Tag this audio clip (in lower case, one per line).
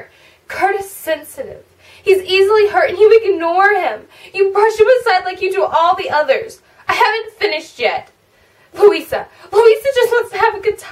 speech